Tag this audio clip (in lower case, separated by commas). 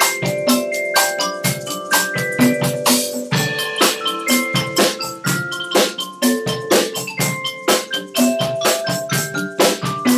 percussion, music